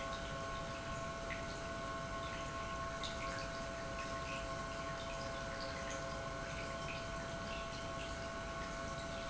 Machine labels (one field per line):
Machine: pump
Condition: normal